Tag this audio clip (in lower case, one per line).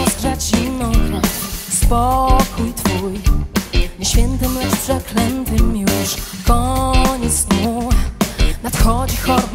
music